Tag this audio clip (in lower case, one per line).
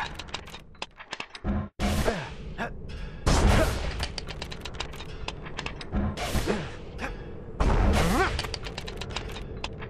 inside a small room